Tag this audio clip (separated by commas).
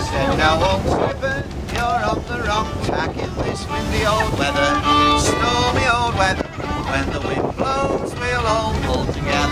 Ocean, Wind, Wind noise (microphone), Water vehicle